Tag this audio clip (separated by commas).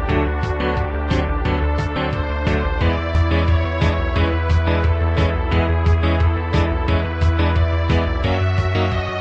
Music